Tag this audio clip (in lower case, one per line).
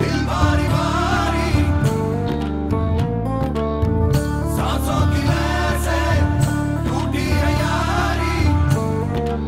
music